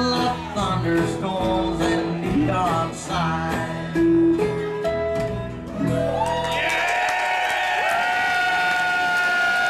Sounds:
Singing, Flamenco, Music

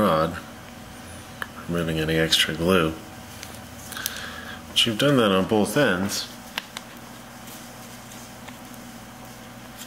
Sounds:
inside a small room, Speech

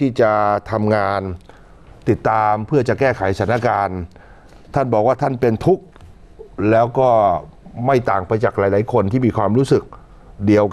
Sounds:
Speech

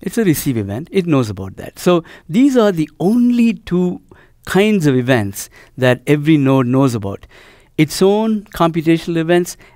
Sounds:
Speech

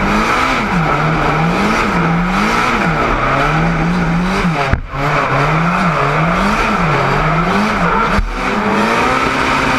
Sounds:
outside, urban or man-made, Vehicle, auto racing, Car, Whir

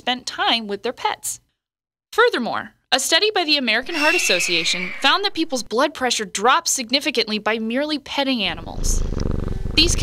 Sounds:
Speech, Purr

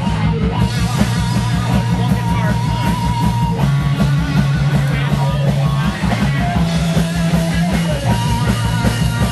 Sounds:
Speech, Music

